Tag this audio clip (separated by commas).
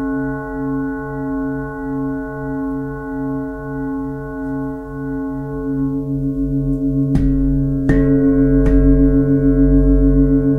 singing bowl